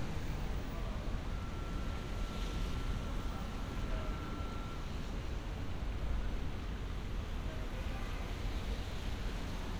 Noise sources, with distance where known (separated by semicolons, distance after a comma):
engine of unclear size, near; unidentified alert signal, far